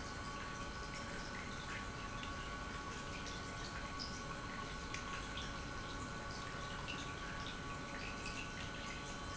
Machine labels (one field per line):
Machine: pump